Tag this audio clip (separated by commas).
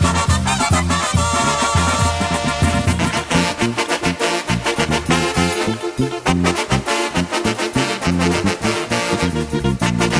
Techno, Music